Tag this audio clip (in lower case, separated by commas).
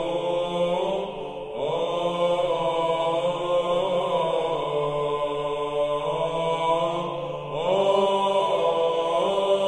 mantra